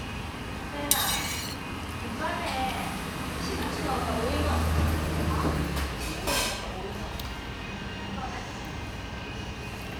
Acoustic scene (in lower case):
restaurant